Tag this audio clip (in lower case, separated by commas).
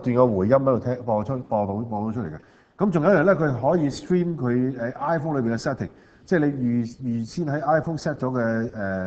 speech